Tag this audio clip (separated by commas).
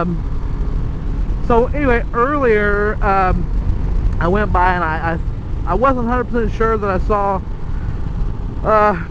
Motor vehicle (road), Vehicle, Motorcycle, Speech